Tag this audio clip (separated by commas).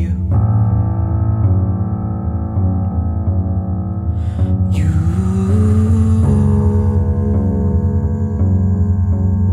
Music, Singing bowl